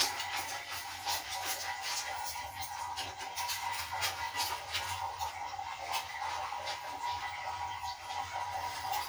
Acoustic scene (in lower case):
kitchen